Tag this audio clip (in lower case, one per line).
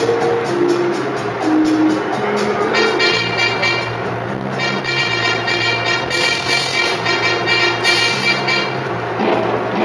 music